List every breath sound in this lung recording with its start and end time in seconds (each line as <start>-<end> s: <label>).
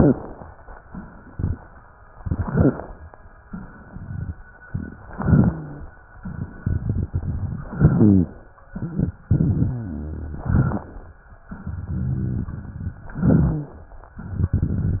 0.89-1.79 s: exhalation
1.27-1.57 s: crackles
2.16-3.00 s: inhalation
3.45-4.36 s: exhalation
3.45-4.36 s: crackles
5.08-5.92 s: inhalation
5.08-5.92 s: wheeze
6.22-7.70 s: exhalation
6.22-7.70 s: crackles
7.76-8.37 s: inhalation
7.76-8.37 s: rhonchi
8.73-10.39 s: exhalation
8.73-10.39 s: rhonchi
10.47-11.11 s: inhalation
10.47-11.11 s: crackles
11.50-13.03 s: exhalation
11.50-13.03 s: crackles
13.17-13.87 s: inhalation
13.17-13.87 s: rhonchi
14.13-15.00 s: exhalation
14.13-15.00 s: crackles